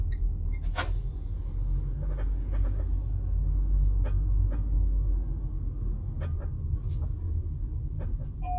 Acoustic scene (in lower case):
car